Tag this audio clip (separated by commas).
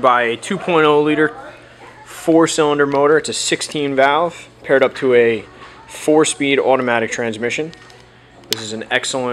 Speech